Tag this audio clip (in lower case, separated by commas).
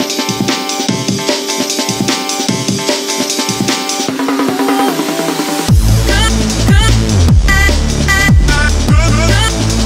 singing, music